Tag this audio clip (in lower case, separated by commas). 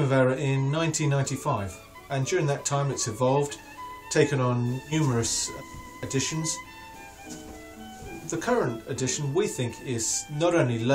violin, bowed string instrument